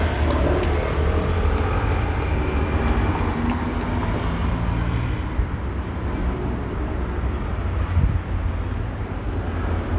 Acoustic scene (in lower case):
street